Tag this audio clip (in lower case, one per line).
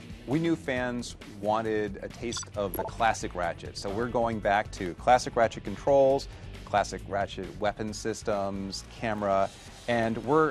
speech
music